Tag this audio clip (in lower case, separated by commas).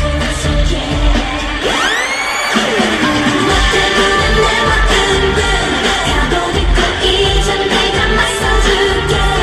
singing, music of asia, music, roll, rock and roll, pop music